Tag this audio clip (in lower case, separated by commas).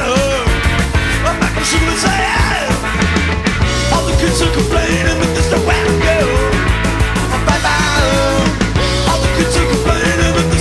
music